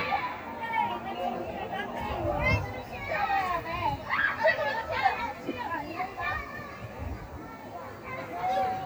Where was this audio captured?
in a residential area